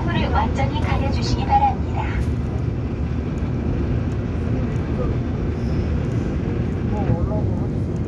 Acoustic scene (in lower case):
subway train